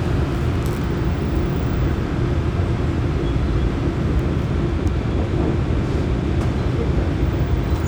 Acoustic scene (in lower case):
subway train